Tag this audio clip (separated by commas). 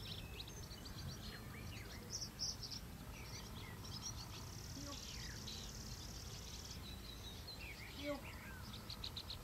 Animal, outside, rural or natural, Environmental noise, Speech